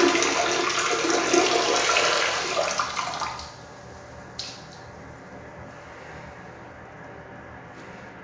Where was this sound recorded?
in a restroom